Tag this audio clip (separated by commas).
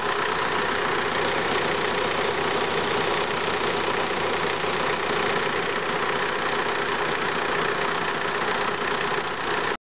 Idling